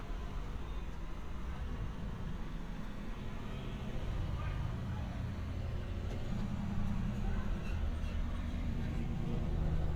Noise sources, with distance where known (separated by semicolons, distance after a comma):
unidentified human voice